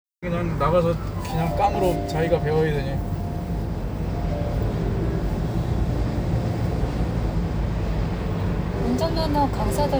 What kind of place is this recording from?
car